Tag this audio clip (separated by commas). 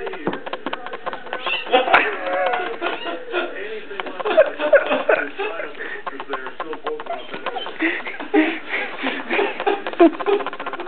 Animal, Cat, inside a large room or hall, Speech, Dog, Domestic animals